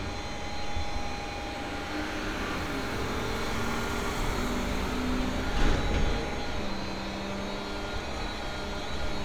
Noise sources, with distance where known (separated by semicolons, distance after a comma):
large-sounding engine, far; small or medium rotating saw